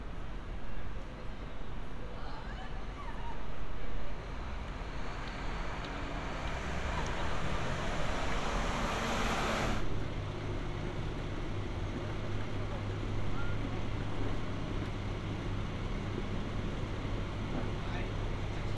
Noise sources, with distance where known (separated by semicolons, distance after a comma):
large-sounding engine, near; unidentified human voice